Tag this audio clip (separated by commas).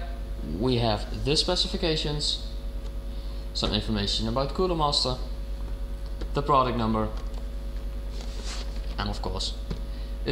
Speech